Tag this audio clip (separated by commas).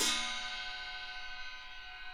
Crash cymbal, Percussion, Music, Musical instrument, Cymbal